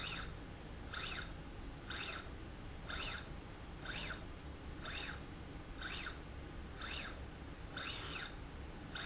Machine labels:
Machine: slide rail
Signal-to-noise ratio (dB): 6 dB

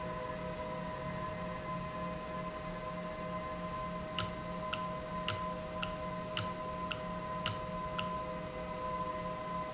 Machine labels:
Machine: valve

